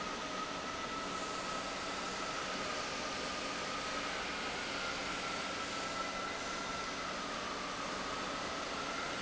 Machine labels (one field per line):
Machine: pump